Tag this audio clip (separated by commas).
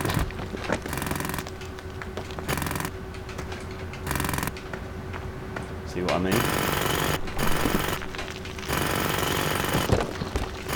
Speech, Jackhammer